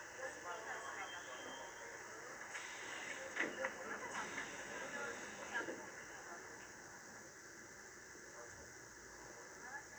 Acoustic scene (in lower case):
subway train